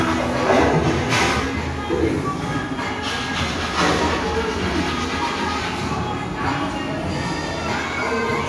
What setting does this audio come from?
crowded indoor space